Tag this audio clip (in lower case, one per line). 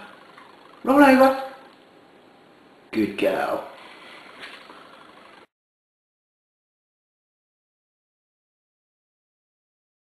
speech